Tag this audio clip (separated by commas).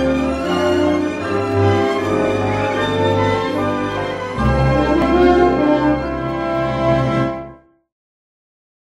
Music, Theme music